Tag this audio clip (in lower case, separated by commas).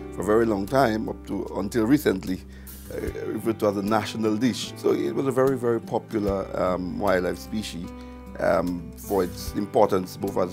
music, speech